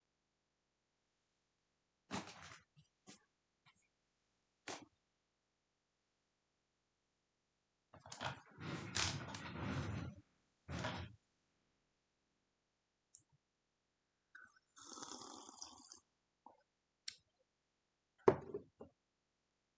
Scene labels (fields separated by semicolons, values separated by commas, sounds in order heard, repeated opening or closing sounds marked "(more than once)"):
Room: bedroom; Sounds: window (more than once)